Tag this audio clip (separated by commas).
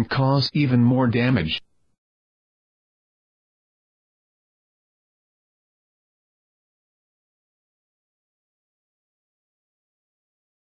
Speech synthesizer, Speech